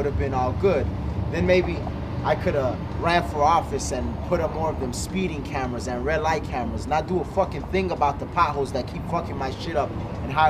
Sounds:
Speech

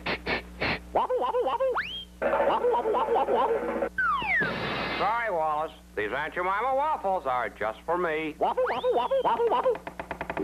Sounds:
Speech

